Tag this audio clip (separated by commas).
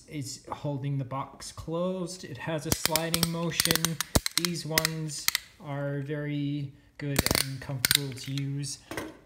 Speech